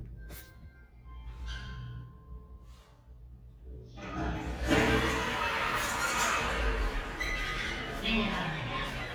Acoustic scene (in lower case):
elevator